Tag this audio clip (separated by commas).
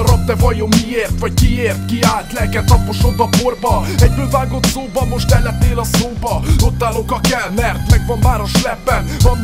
Music, Theme music